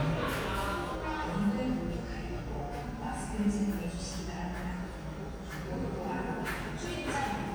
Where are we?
in a cafe